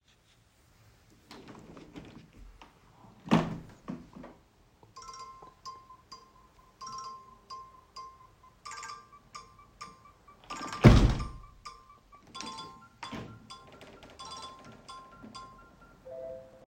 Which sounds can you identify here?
window, phone ringing